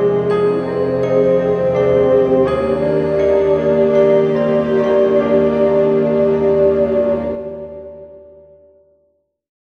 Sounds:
Music

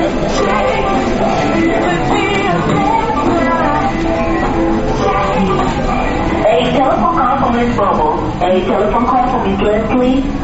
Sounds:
Speech, Music

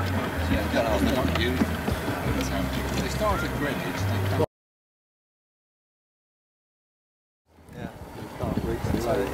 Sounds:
Speech, Music, Engine, Water vehicle

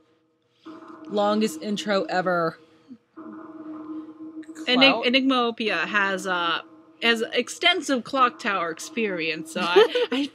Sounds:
Speech

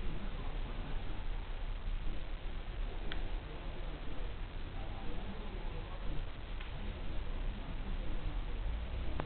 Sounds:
Speech

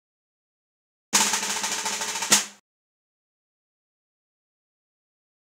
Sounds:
Snare drum, Percussion, Drum, Drum roll

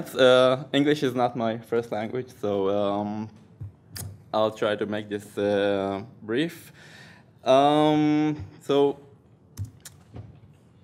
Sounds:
Speech

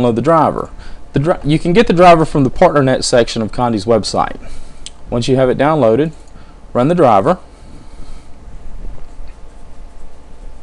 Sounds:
Speech

